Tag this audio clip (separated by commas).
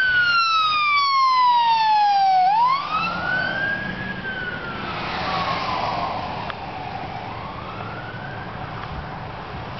Vehicle, Emergency vehicle, Truck, Ambulance (siren)